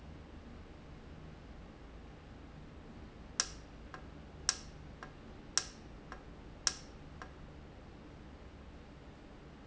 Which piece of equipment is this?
valve